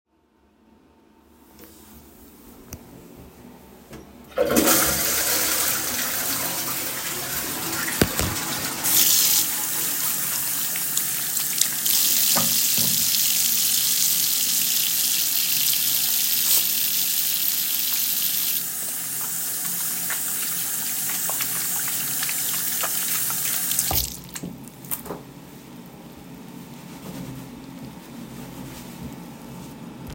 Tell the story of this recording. I flush the toilet and then wash my hands.